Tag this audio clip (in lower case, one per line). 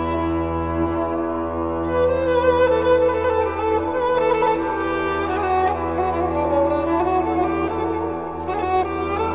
violin
bowed string instrument